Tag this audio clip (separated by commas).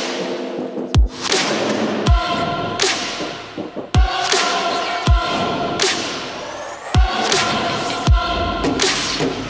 Music